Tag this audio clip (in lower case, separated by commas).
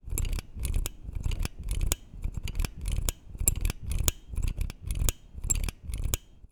mechanisms